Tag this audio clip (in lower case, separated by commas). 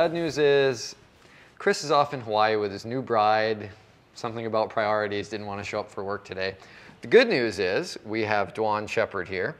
speech